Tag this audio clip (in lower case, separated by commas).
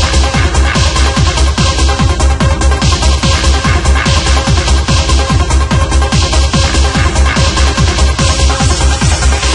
music